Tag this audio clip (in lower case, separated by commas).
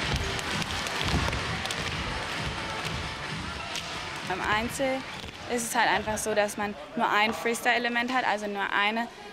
rope skipping